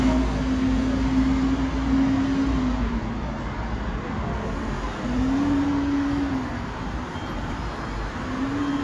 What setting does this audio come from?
street